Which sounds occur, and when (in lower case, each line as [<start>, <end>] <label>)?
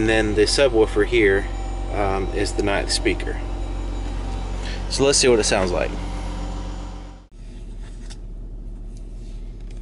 [0.00, 0.44] male speech
[0.00, 4.26] medium engine (mid frequency)
[1.26, 1.39] generic impact sounds
[1.60, 1.81] breathing
[1.87, 2.95] male speech
[2.51, 2.72] generic impact sounds
[4.35, 9.81] medium engine (mid frequency)
[4.36, 4.70] surface contact
[4.77, 5.20] generic impact sounds
[5.88, 6.02] tick
[6.15, 6.47] surface contact
[6.55, 6.89] generic impact sounds
[7.05, 7.60] surface contact
[7.77, 9.29] male speech